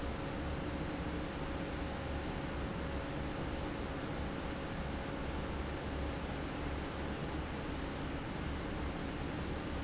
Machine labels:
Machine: fan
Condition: abnormal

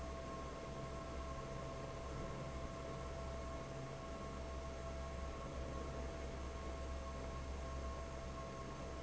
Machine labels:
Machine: fan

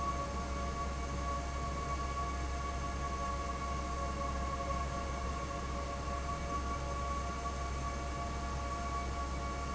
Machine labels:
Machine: fan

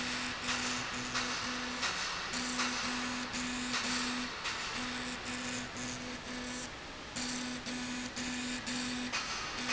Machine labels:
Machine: slide rail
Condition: abnormal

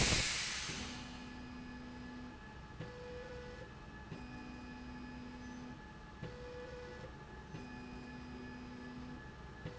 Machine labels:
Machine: slide rail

